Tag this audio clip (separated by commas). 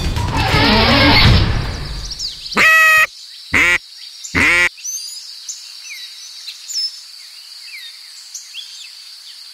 Animal, Music, Quack